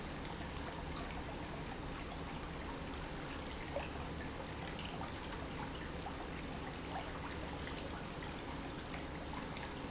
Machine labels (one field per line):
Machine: pump